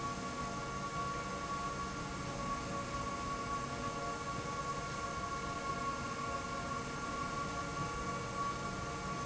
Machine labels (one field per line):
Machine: slide rail